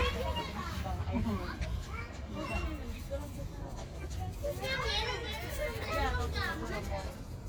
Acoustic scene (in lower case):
residential area